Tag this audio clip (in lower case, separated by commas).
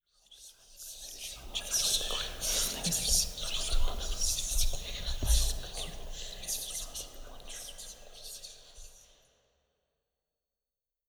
whispering, human voice